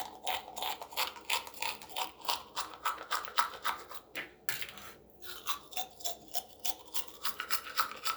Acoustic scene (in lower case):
restroom